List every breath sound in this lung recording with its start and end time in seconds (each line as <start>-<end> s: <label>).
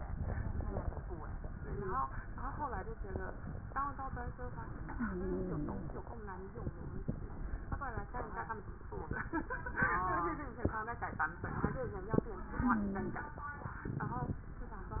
4.90-5.96 s: wheeze
12.52-13.26 s: wheeze